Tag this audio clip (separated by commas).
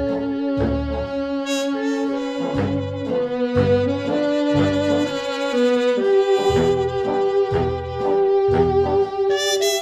Music, Saxophone